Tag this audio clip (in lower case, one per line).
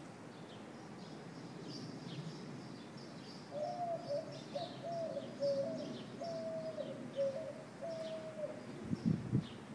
coo
bird